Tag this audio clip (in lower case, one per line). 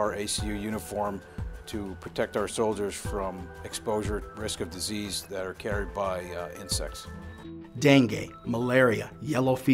music
speech